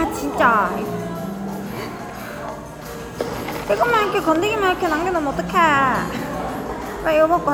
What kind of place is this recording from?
cafe